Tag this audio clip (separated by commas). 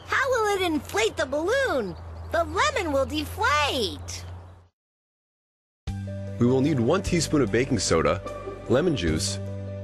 Music, Speech